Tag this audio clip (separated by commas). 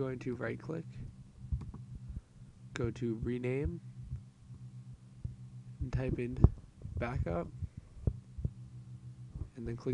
Speech